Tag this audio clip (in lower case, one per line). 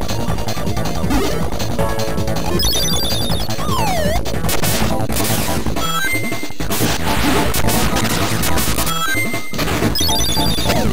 electronic music
music